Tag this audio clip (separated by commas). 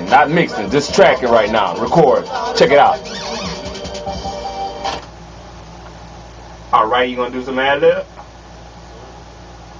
Speech, Music